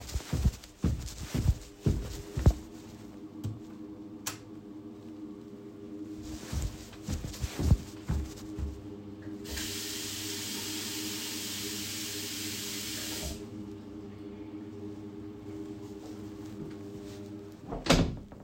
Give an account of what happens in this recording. Go to the toilet, turn the lights on, get some water and close the door